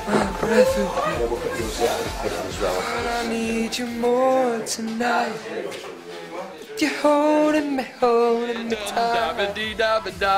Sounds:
Male singing, Music

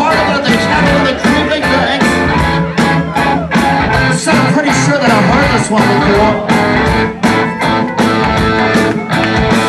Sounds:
Speech, Music

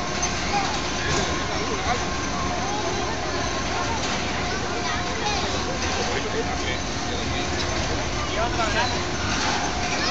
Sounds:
Speech

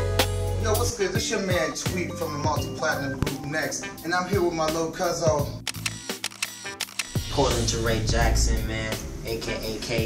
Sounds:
Music, Speech

